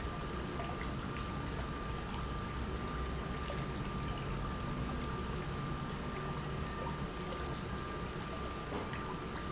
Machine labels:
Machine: pump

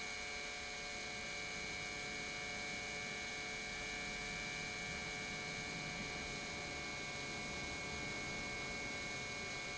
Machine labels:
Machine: pump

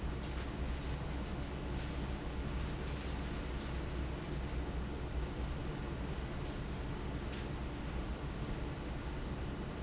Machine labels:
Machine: fan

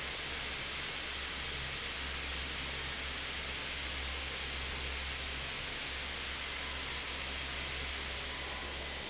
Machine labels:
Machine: fan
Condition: normal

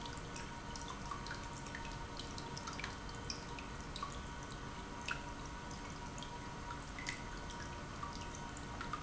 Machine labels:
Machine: pump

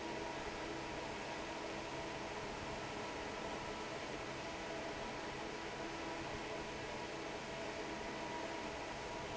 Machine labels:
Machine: fan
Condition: normal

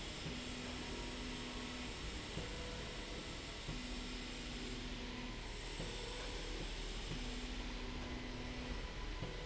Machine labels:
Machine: slide rail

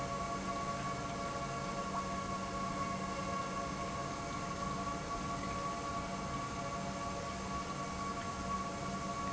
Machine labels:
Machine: pump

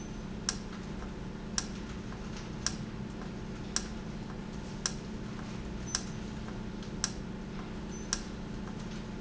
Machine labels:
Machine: valve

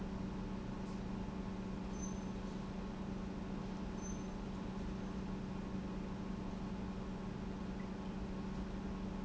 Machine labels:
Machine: pump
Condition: normal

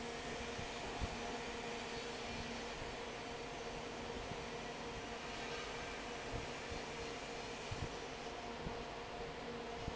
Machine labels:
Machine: fan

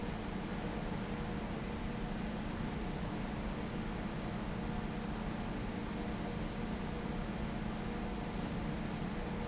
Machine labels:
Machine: fan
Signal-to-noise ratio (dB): -6 dB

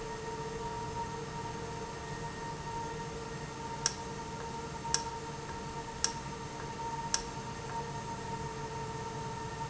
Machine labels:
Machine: valve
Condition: normal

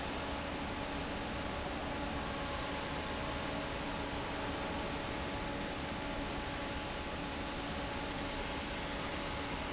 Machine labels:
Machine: fan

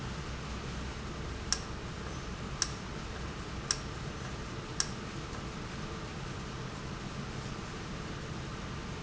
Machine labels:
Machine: valve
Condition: normal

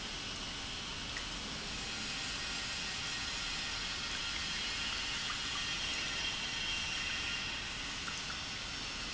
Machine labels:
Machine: pump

